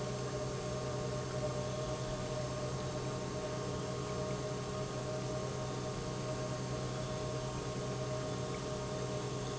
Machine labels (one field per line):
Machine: pump